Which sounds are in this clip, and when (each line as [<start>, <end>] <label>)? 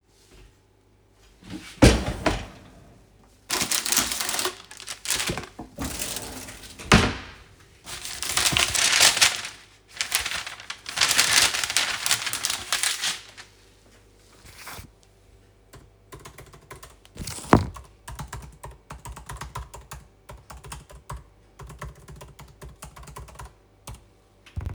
[1.35, 2.82] wardrobe or drawer
[6.61, 7.62] wardrobe or drawer
[15.61, 24.38] keyboard typing